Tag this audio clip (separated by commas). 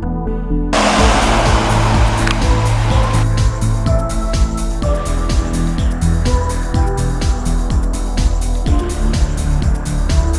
Music